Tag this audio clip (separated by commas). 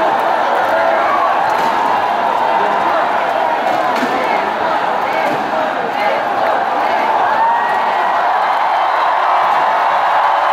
Speech, Whoop